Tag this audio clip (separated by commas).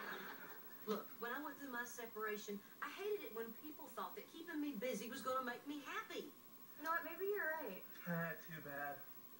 Speech